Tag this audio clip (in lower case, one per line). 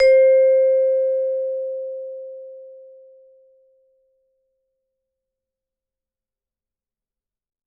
musical instrument
mallet percussion
percussion
music